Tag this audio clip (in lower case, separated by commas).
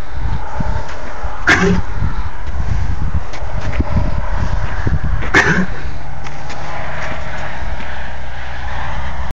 animal, horse, clip-clop